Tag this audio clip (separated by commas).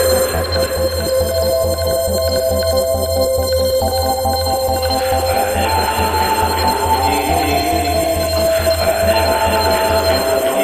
Hum